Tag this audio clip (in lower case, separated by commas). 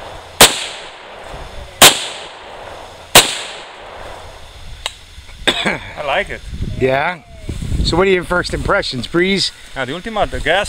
outside, rural or natural, speech